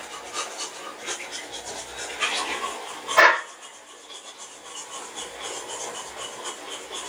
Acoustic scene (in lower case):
restroom